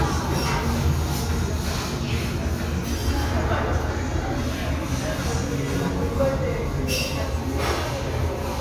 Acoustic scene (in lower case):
restaurant